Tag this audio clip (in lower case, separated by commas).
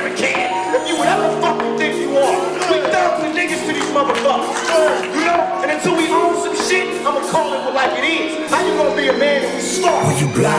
music, speech